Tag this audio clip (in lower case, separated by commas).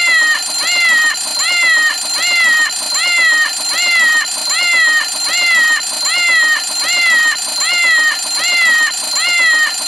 meow